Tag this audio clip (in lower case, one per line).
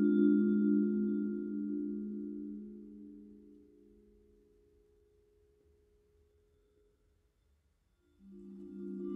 music